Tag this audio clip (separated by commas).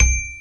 Percussion, Marimba, Mallet percussion, Musical instrument, Music